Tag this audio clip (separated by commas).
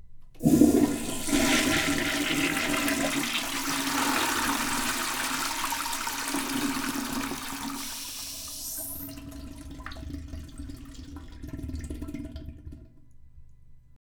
Domestic sounds, Toilet flush